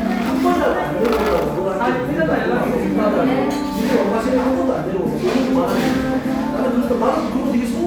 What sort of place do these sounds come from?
cafe